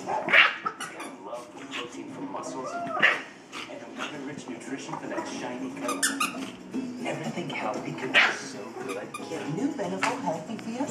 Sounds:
Dog, Bark, Speech, pets, canids, Animal

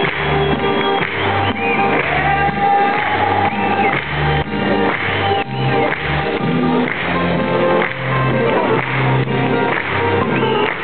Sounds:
Music

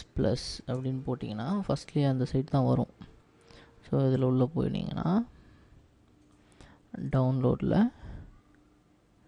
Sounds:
Speech

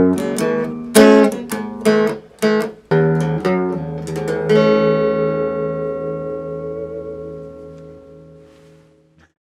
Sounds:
Plucked string instrument, Musical instrument, Electric guitar, Music, Strum

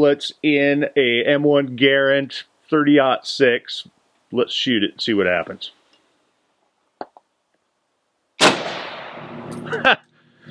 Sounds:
outside, rural or natural, Speech

